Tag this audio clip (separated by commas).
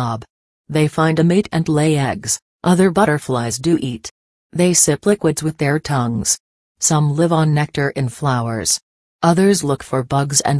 Speech